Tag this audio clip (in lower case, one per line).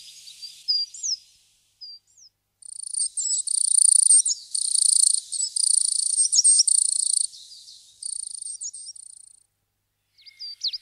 black capped chickadee calling